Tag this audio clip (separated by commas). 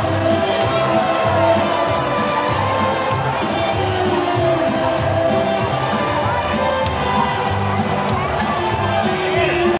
Speech, Music